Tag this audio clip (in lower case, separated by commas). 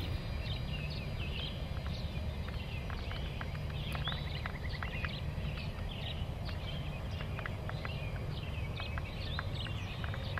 animal, bird